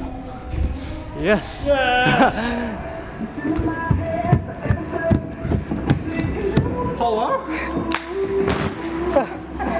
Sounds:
bouncing on trampoline

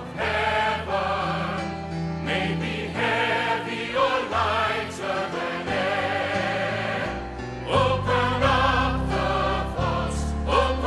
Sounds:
music

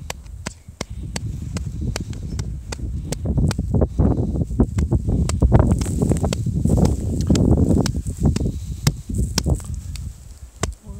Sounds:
wind noise (microphone)

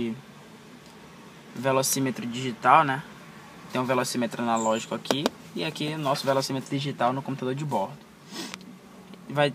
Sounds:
speech

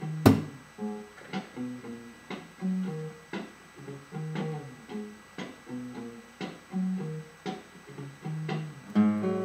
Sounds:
guitar
musical instrument
plucked string instrument
music

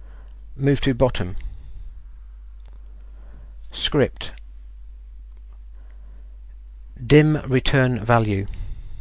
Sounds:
speech

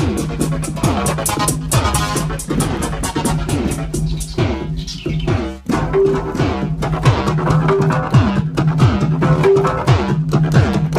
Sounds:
electronica
music

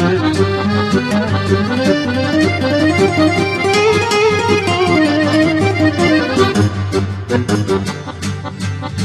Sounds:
music

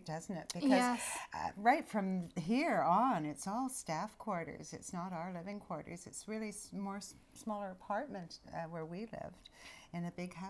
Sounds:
speech

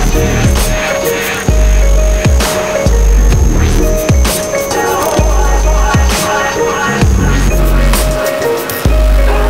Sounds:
music

